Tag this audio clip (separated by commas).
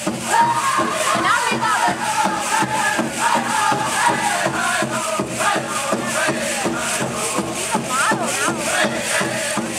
Music, Speech